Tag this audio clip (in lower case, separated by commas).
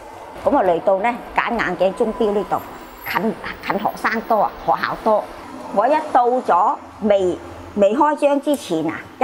speech